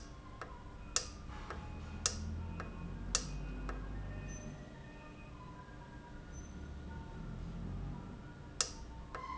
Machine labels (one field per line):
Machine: valve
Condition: normal